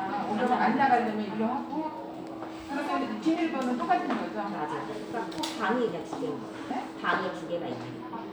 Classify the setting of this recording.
crowded indoor space